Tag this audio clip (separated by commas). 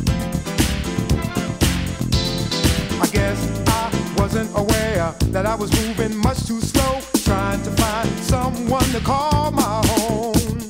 Music